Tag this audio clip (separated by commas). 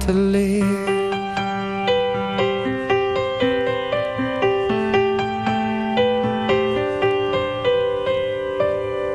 Music